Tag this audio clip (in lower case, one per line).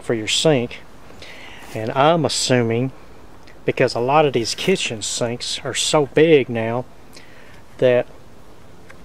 speech